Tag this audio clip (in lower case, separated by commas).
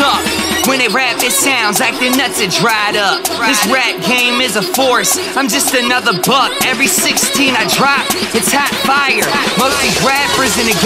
music, rhythm and blues, middle eastern music